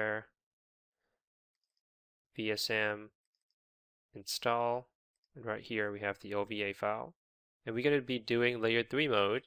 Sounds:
Speech

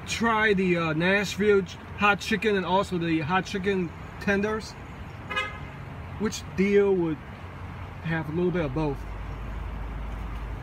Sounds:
Car, Vehicle

